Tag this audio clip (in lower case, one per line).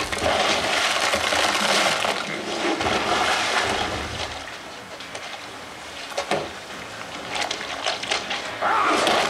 water